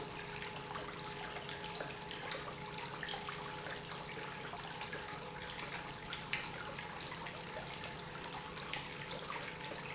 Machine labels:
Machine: pump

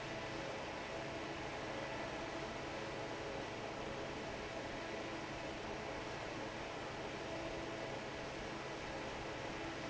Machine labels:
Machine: fan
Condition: normal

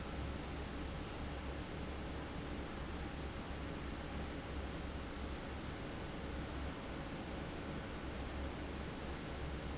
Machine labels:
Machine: fan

